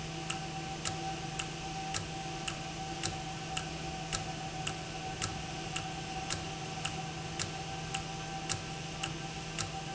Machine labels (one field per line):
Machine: valve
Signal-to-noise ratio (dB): -6 dB